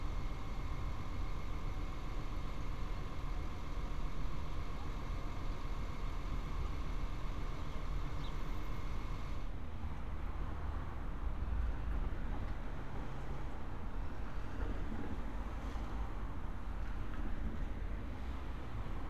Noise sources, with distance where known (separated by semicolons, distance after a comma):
medium-sounding engine